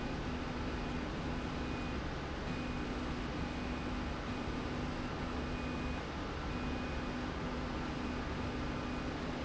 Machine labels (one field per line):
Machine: slide rail